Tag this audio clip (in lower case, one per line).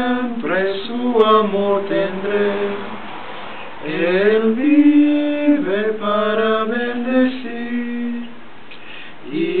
male singing